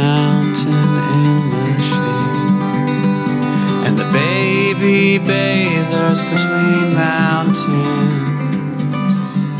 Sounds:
music

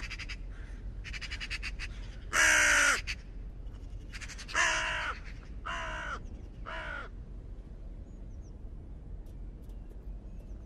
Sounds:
crow cawing

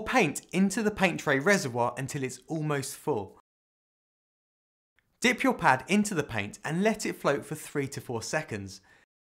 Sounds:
speech

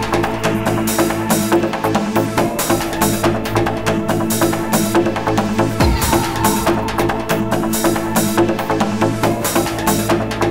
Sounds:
music, trance music

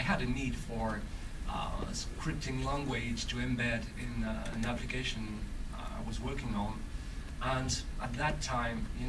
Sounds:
monologue, speech, man speaking

